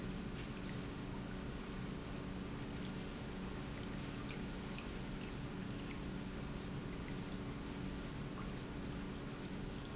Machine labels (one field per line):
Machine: pump